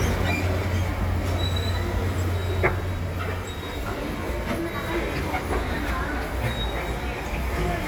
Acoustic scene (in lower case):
subway station